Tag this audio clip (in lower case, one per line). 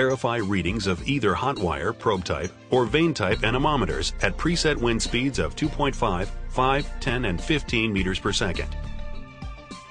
music
speech